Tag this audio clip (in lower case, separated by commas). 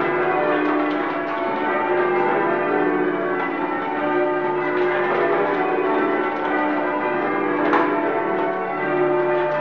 church bell ringing